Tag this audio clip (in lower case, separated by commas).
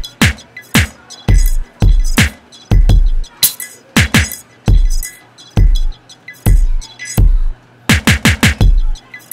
music, drum machine